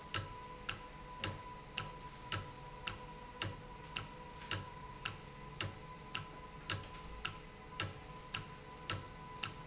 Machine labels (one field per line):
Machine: valve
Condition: normal